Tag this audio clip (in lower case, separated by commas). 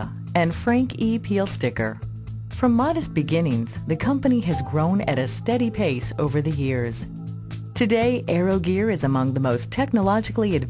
speech, music